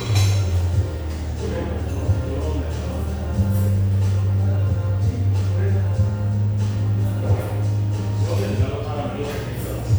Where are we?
in a cafe